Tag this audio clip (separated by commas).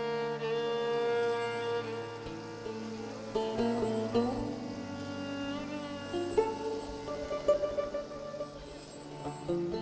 Musical instrument, Music, fiddle